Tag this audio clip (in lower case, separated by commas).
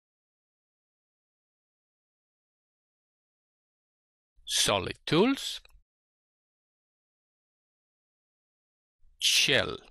speech